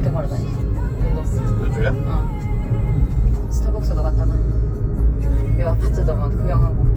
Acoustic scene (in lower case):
car